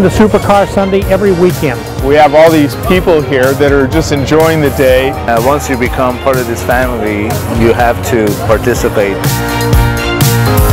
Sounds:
music, speech

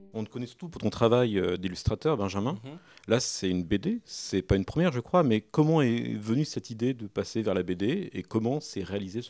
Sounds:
speech

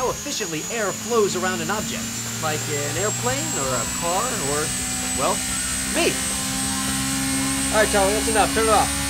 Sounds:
speech

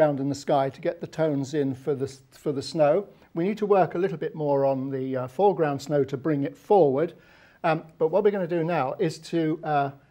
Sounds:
speech

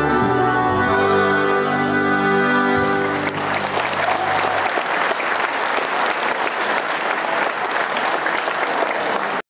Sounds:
accordion, musical instrument, applause

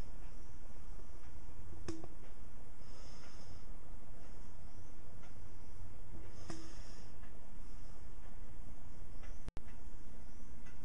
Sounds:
inside a small room

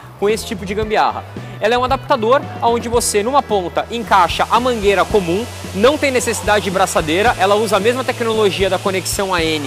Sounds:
music, speech

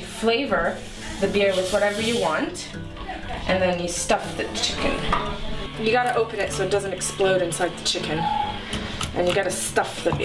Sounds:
music, speech

